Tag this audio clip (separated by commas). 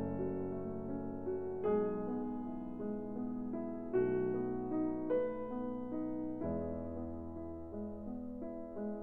Music